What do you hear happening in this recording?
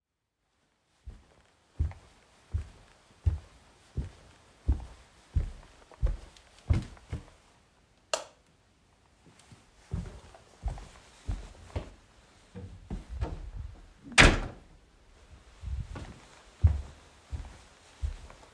I walked through the living room, turned off the light in the living room and went through the door into the kitchen. I closed the door behind me and walked to the table.